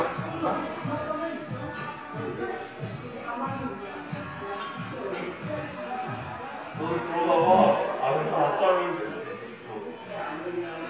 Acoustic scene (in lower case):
crowded indoor space